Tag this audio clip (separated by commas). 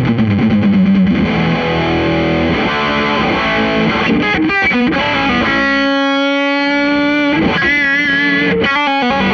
Strum, Music, Plucked string instrument, Musical instrument, Guitar